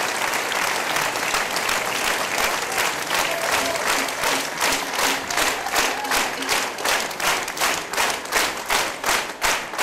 A crowd of people applauding and briefly cheering